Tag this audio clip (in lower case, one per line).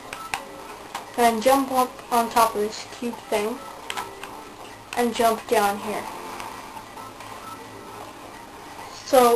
speech